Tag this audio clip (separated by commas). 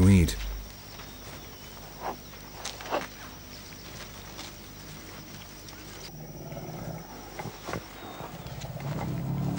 outside, rural or natural, Animal, Speech